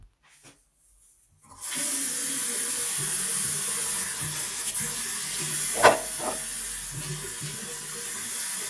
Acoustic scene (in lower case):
restroom